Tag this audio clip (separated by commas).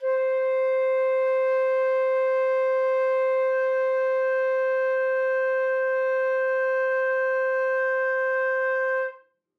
Musical instrument, Wind instrument, Music